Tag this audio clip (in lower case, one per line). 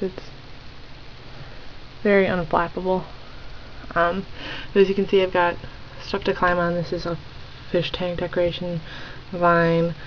speech